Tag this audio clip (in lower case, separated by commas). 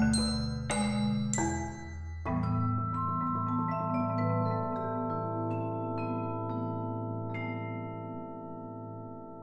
musical instrument, vibraphone, music, percussion, xylophone